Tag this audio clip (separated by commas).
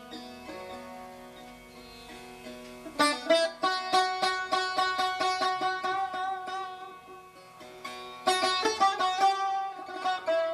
Musical instrument, Sitar, Music, Guitar, Plucked string instrument